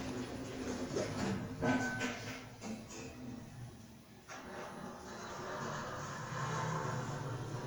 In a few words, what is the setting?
elevator